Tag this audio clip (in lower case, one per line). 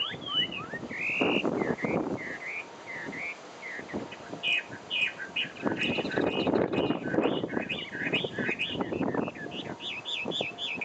wood thrush calling